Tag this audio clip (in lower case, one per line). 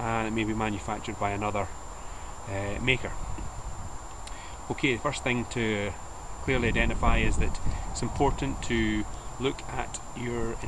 speech